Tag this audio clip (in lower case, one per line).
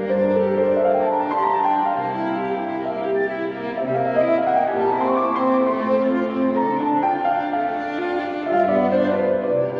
violin
musical instrument
music